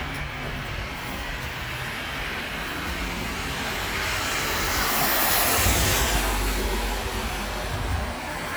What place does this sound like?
street